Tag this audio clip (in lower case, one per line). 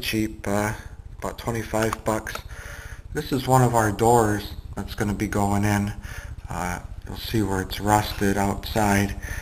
speech